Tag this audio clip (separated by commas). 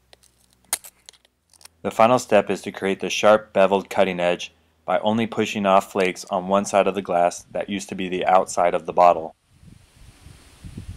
Speech